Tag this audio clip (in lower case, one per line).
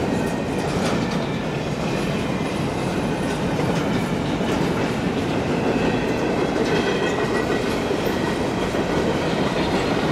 vehicle
train wagon
train
outside, urban or man-made